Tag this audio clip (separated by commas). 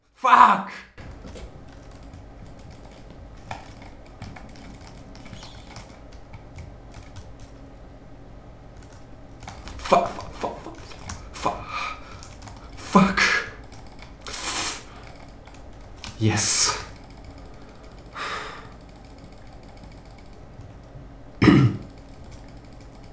Human voice, Shout, Yell